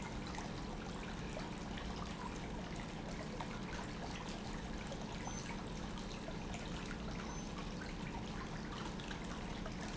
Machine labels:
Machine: pump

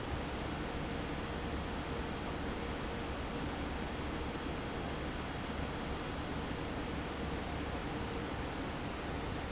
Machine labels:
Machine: fan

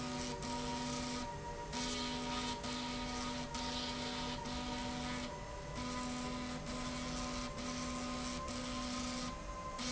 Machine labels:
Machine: slide rail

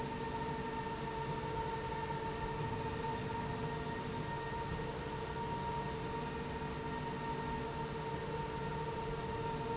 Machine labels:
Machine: slide rail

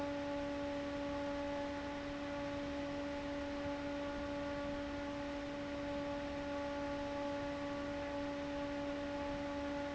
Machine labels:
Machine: fan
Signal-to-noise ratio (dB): 6 dB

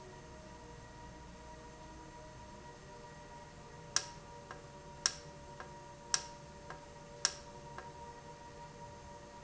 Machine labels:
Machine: valve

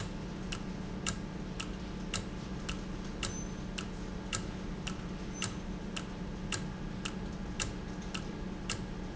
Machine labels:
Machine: valve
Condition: normal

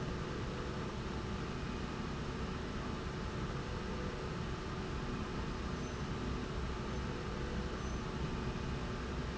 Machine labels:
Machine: slide rail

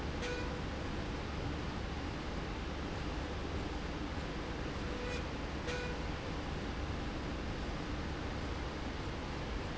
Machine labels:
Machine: slide rail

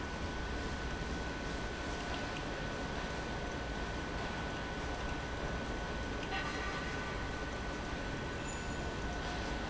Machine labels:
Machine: pump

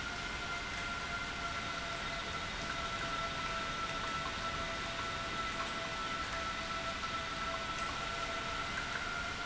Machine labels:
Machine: pump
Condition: normal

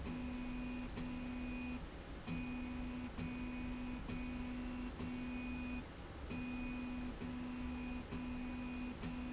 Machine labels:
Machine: slide rail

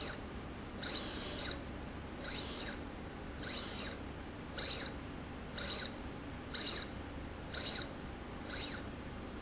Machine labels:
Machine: slide rail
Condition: abnormal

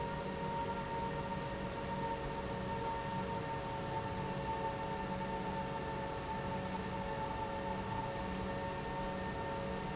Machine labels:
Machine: pump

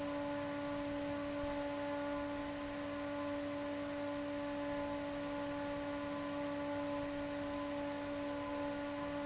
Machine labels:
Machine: fan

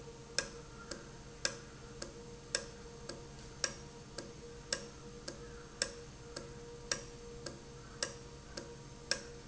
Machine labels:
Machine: valve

